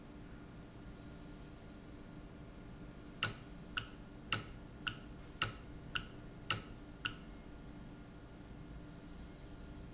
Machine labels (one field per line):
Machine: valve